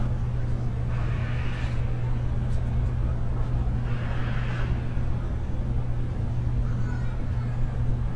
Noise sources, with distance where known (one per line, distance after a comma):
unidentified powered saw
unidentified human voice, far